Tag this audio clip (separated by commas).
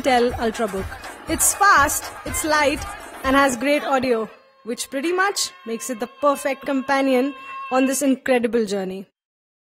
Music, Speech